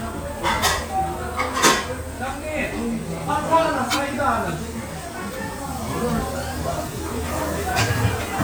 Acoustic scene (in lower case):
restaurant